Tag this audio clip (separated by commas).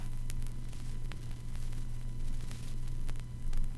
Crackle